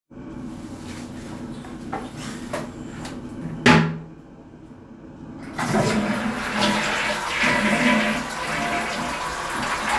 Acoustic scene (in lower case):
restroom